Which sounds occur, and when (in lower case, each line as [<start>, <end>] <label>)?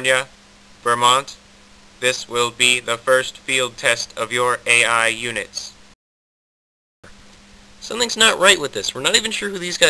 [0.01, 0.21] male speech
[0.01, 5.93] noise
[0.85, 1.29] male speech
[1.93, 3.31] male speech
[3.48, 5.68] male speech
[7.02, 9.85] noise
[7.79, 9.85] male speech